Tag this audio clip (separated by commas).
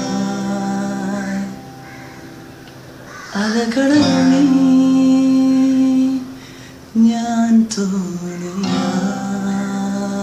Musical instrument, Acoustic guitar, Guitar, Plucked string instrument, Music